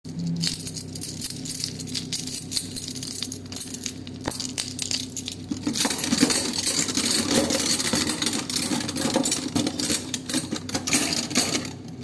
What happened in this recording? I put the phone on the kitchen isle, then I move my keys and then I start moving the cutlery